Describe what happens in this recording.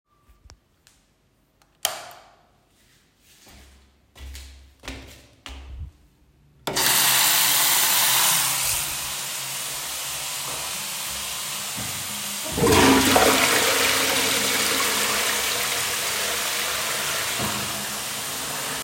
I switched on the light in the bathroom. I walked towards the sink. I opened the water, while the water was running, I flushed the toilet.